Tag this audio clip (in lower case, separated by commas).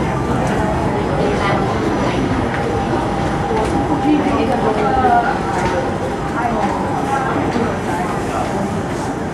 vehicle, subway, train